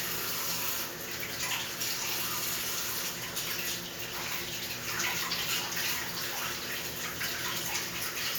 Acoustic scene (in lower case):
restroom